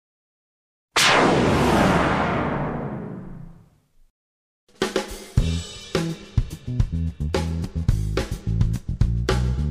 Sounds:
Swing music

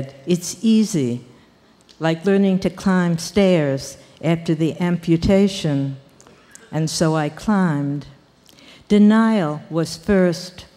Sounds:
Speech

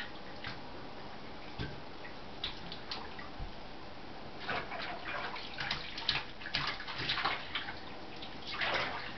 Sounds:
inside a small room, Bathtub (filling or washing)

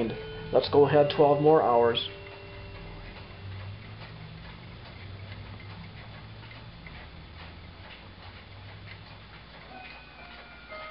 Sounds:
Tick, Speech

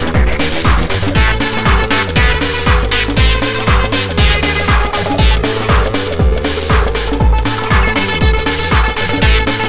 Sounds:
Music, Trance music

